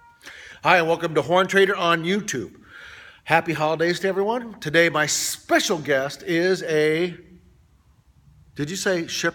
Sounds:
speech

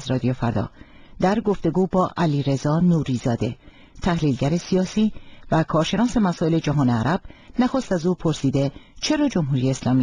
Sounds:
speech

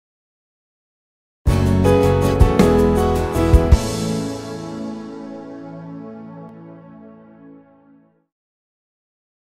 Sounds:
music
tender music

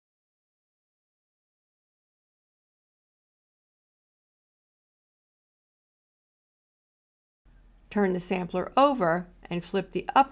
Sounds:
speech

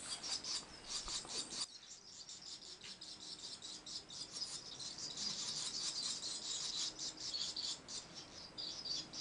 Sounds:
barn swallow calling

